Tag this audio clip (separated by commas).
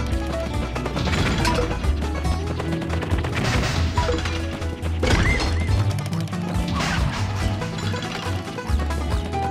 Music